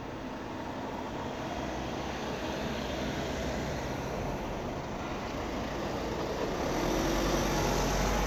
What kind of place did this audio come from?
street